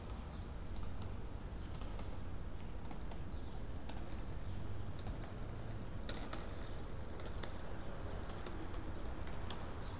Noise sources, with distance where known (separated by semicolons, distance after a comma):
background noise